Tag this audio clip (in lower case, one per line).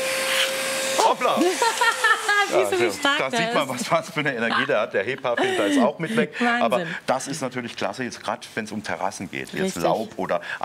vacuum cleaner
speech